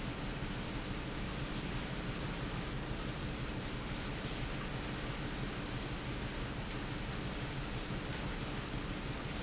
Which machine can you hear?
pump